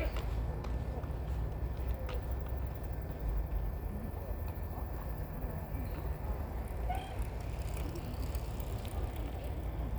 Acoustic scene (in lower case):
park